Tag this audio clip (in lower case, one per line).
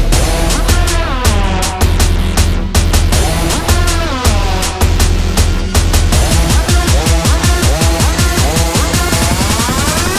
music
electronic dance music